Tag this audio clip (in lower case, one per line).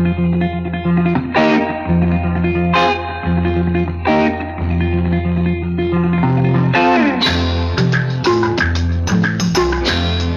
music